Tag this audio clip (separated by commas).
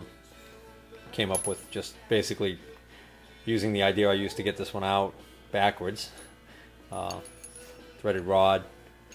Speech